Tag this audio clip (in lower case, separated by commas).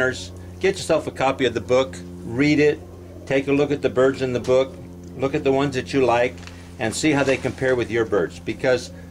speech